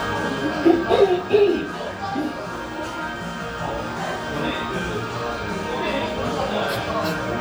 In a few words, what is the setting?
cafe